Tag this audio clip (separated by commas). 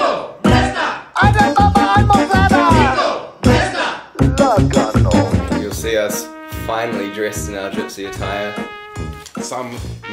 Brass instrument, Speech, Music